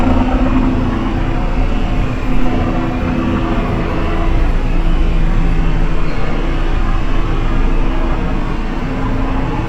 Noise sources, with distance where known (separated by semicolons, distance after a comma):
unidentified impact machinery